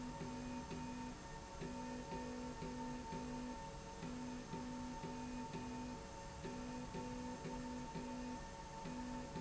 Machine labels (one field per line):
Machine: slide rail